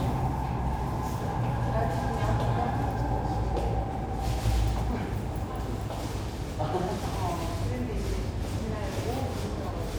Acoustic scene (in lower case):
subway station